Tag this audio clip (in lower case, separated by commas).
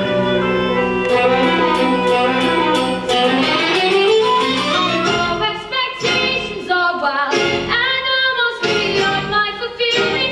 music, string section